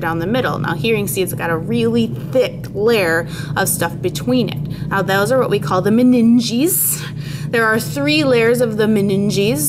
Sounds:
Speech

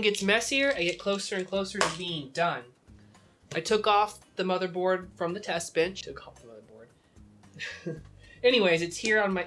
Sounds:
Speech

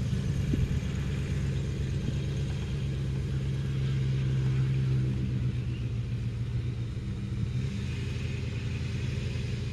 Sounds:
Vehicle

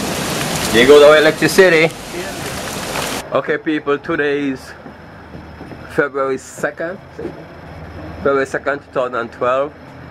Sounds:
Speech

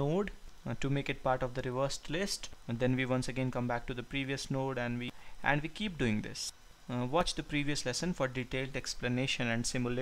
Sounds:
reversing beeps

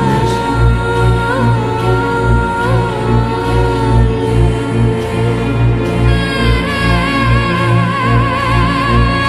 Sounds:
Music

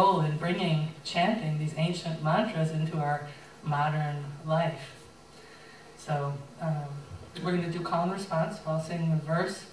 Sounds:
Speech

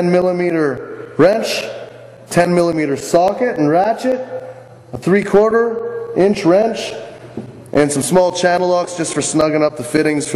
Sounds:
Speech

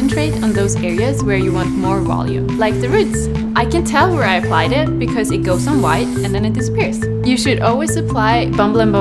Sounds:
Spray, Speech, Music

